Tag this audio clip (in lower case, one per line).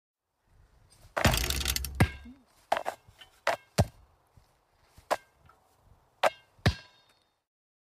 swoosh